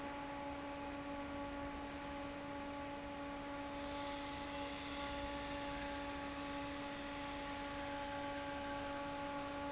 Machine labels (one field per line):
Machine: fan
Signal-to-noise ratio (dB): 6 dB